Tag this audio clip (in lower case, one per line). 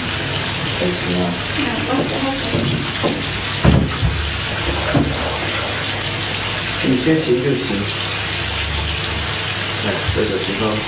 speech